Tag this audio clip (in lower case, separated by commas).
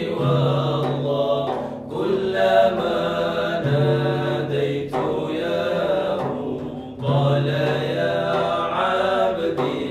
music, chant